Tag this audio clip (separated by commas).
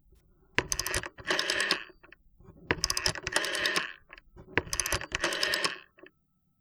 Alarm, Telephone